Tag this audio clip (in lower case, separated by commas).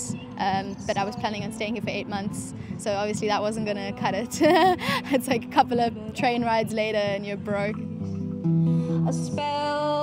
music, speech